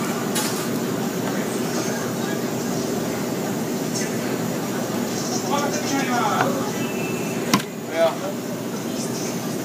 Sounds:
speech

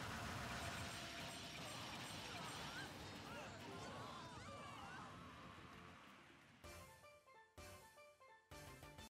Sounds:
music

